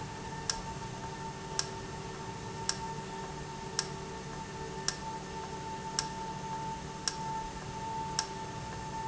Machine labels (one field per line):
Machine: valve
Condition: normal